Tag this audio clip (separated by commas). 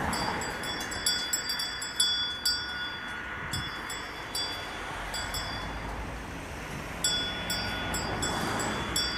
bovinae cowbell